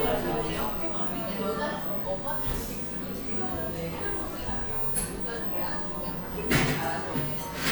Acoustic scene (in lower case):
cafe